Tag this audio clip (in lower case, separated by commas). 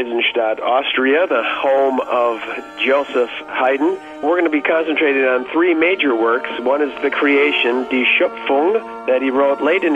classical music, speech, music